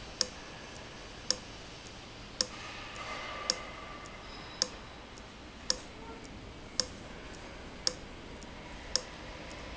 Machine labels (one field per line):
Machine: valve